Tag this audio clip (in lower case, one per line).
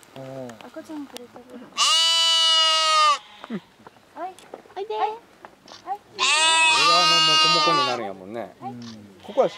livestock